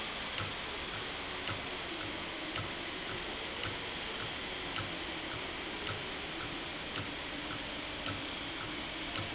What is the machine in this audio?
valve